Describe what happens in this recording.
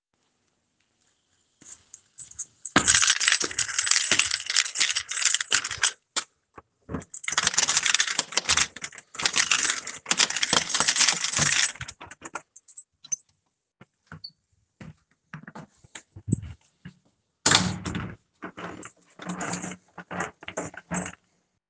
I used a keychain to unlock the door. Then I opened the door and closed it again. After that I locked it again